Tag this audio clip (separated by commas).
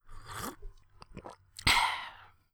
Liquid